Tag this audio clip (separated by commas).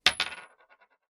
home sounds, Coin (dropping)